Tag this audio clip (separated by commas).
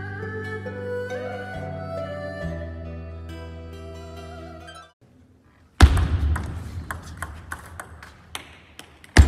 playing table tennis